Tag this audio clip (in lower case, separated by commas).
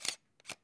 camera, mechanisms